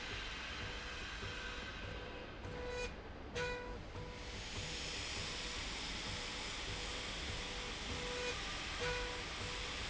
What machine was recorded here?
slide rail